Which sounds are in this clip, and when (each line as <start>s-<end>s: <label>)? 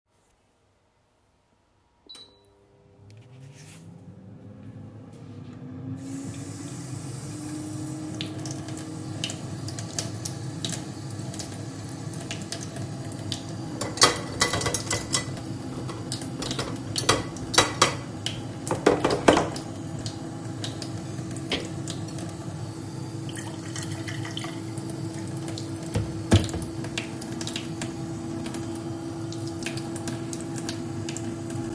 1.9s-31.7s: microwave
4.9s-31.7s: running water
13.9s-15.5s: cutlery and dishes
13.9s-15.5s: door
16.0s-19.8s: cutlery and dishes